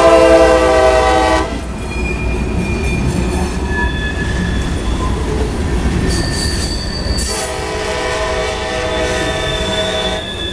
Train horn honking followed by stopping train and more honking